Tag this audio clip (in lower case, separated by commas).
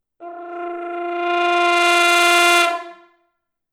brass instrument, music, musical instrument